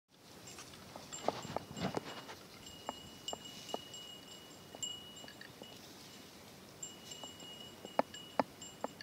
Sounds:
cattle

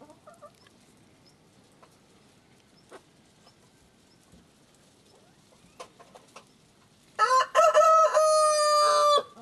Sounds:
Bird, Pigeon

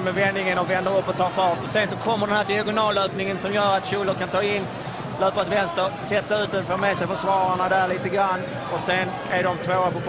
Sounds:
Speech

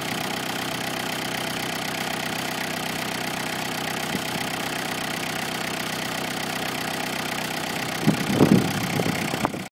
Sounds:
Idling, Engine, Vehicle, Medium engine (mid frequency)

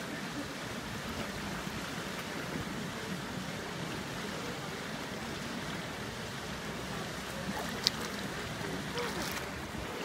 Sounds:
swimming

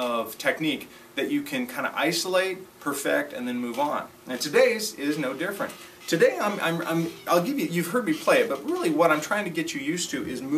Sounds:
Music, Speech

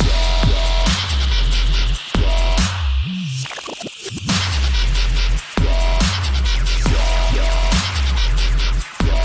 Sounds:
Dubstep, Electronic music, Music

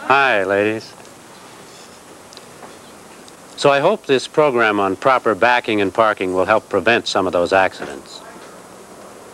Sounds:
Speech

